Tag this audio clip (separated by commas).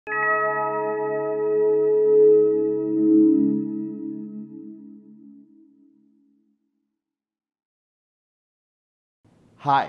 Music, Speech